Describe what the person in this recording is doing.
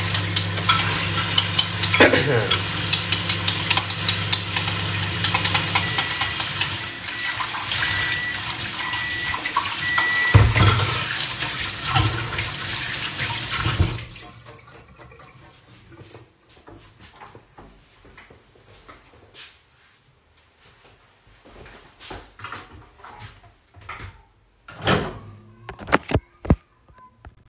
I was washing the dishes in the kitchen sink, while the microwave was working. Once it finished, I came up to the microwave and took out the bowl